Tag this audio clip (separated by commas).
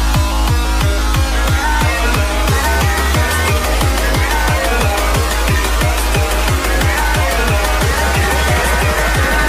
Music